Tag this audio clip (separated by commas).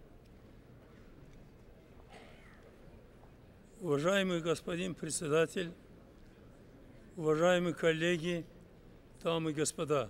man speaking, Speech, Narration